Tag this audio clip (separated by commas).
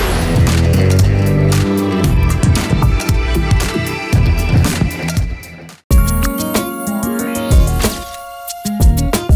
Music